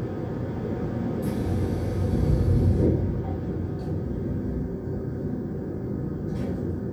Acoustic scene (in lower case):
subway train